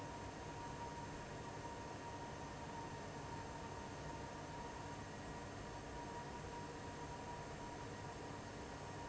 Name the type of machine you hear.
fan